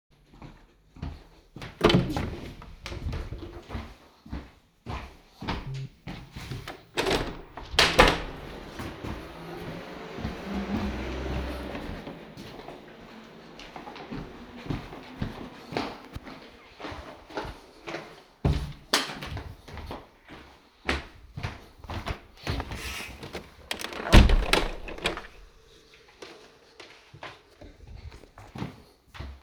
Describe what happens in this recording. I am walking to bedroom from the living room, open the door, open the window, walk back to the living room, walk to another bedroom through the hallway, open the door, turn the light switch on, open the window there too and walk back to the hallway